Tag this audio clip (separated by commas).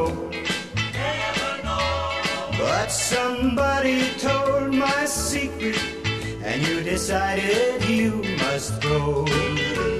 Music